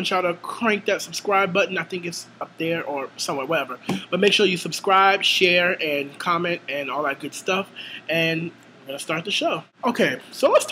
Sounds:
speech

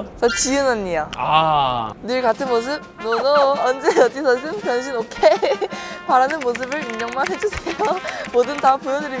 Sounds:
playing volleyball

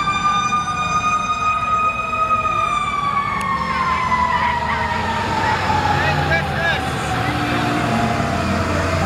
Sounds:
fire truck siren

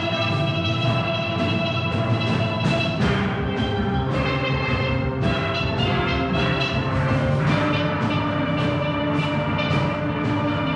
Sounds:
playing steelpan

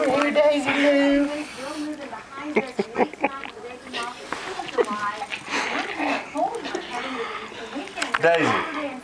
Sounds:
speech

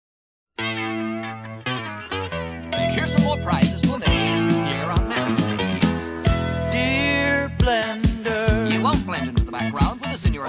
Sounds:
music
funk
speech

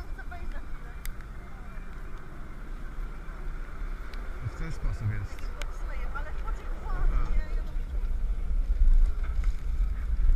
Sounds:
speech

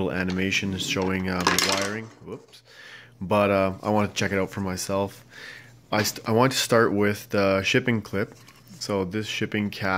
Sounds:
speech

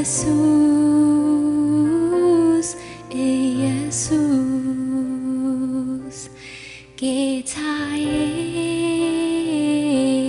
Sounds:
music

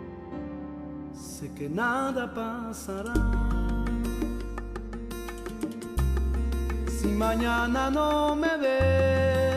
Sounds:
music

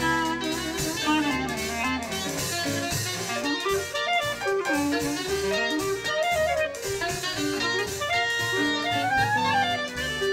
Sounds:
saxophone
music
jazz

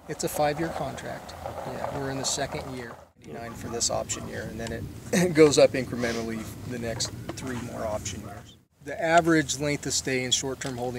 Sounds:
speech

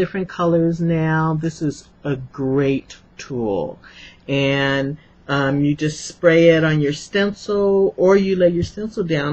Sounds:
speech

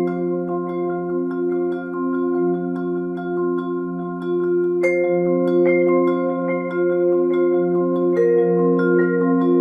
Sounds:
music
playing vibraphone
musical instrument
vibraphone

